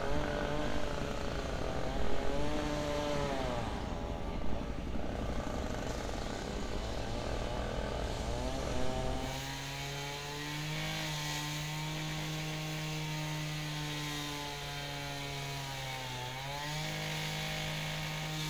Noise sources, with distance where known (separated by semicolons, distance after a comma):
chainsaw